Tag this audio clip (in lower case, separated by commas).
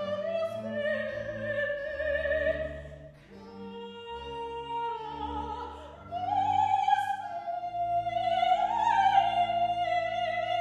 music, opera, classical music, singing